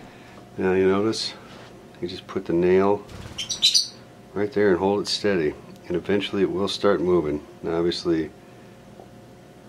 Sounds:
bird
speech

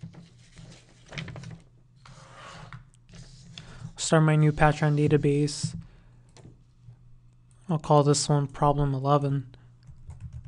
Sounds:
speech

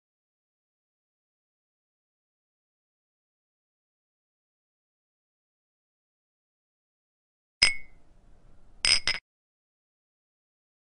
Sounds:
glass

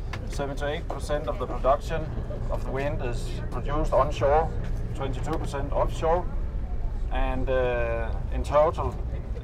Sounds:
speech

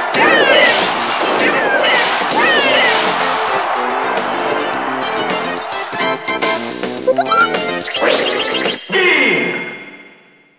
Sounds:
music

